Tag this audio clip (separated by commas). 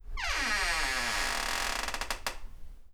Domestic sounds, Door, Squeak